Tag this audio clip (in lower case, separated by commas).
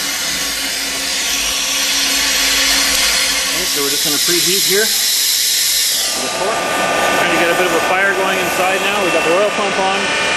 speech